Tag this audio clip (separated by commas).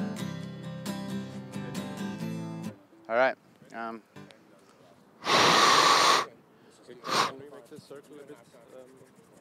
Speech, Music